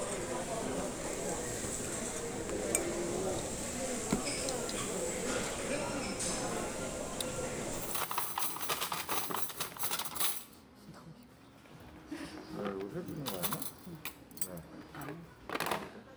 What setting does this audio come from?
restaurant